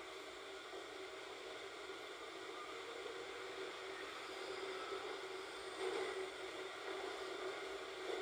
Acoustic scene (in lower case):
subway train